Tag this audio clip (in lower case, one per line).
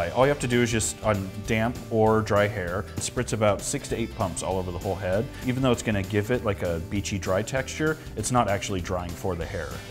speech
music